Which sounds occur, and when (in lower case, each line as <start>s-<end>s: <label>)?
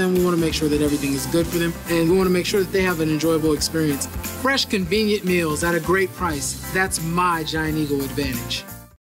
0.0s-1.7s: man speaking
0.0s-8.9s: music
1.9s-4.0s: man speaking
4.4s-8.7s: man speaking